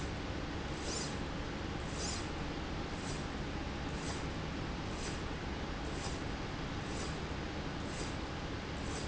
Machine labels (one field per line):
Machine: slide rail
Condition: normal